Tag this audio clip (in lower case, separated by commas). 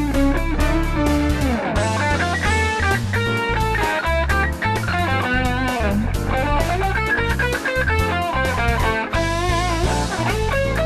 guitar, music, acoustic guitar, playing electric guitar, musical instrument, electric guitar